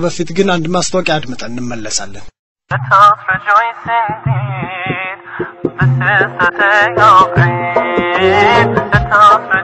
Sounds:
Speech, Music

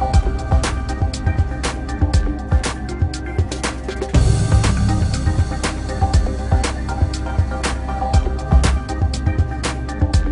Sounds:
Music

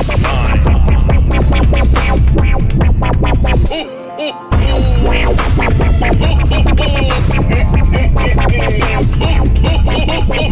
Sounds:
Music, Dubstep, Electronic music

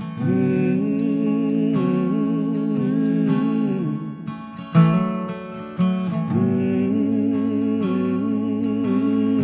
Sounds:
Music

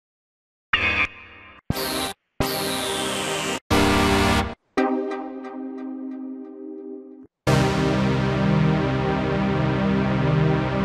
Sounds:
Music

